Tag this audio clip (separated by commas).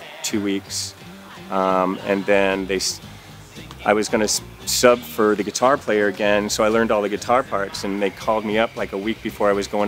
Speech, Music